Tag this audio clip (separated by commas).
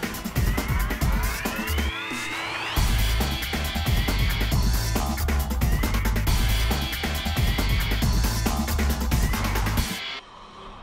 Music